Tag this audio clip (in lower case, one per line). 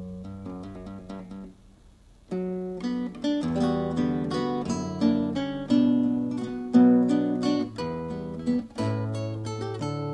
plucked string instrument
guitar
music
musical instrument
acoustic guitar